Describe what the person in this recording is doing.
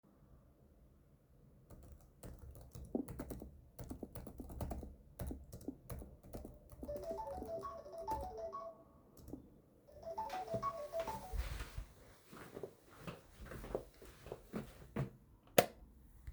I was typing on a keyboard then my phone rang. I got up and turned on the light switch.